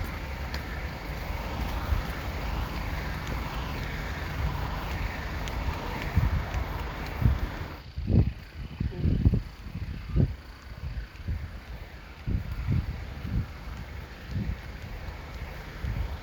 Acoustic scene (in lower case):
street